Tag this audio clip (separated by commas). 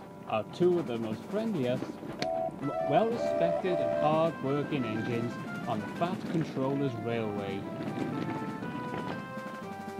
Speech, Music